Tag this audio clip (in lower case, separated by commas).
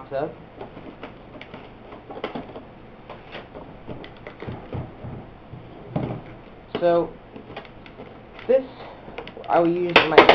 inside a small room, speech